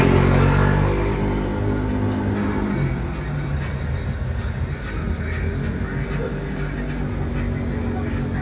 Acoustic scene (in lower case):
street